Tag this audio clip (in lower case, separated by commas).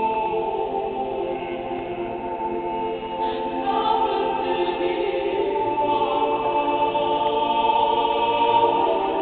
female singing, music, choir